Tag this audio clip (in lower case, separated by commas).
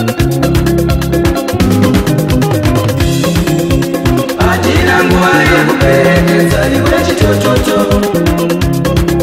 music